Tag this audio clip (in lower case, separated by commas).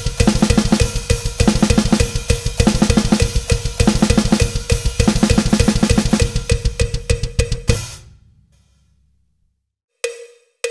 playing bass drum